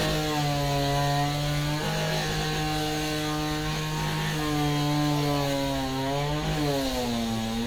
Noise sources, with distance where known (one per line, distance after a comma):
chainsaw, near